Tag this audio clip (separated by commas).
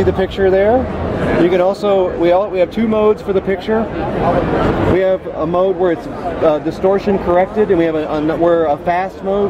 Speech